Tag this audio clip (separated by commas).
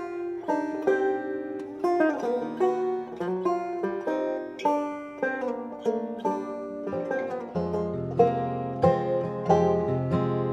playing banjo